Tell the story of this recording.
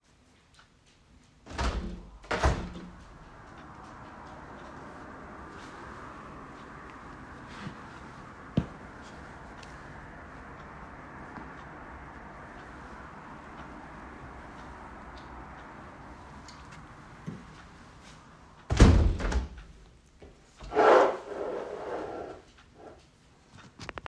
I open the window close it again and move the chair